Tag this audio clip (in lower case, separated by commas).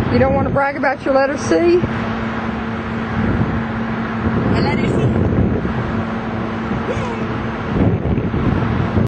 speech